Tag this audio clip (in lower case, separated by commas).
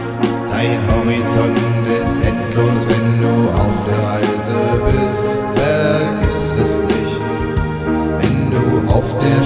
music